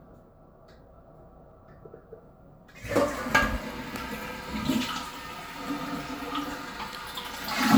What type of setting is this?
restroom